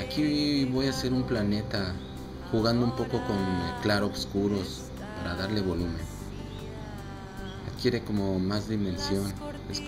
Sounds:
Music, Speech

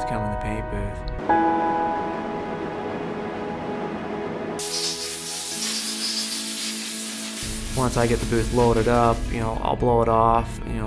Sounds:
inside a large room or hall, Music, Speech

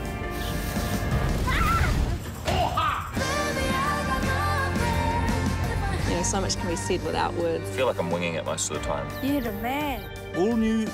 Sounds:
Speech, Music

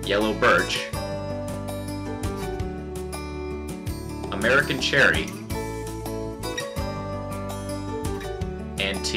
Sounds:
Music, Speech

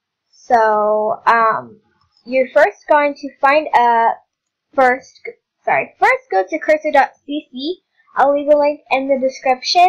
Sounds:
Speech

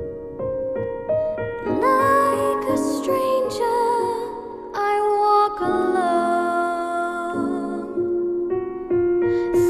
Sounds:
Music

